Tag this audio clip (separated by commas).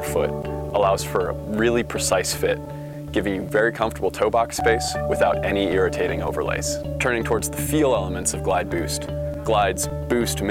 Speech, Music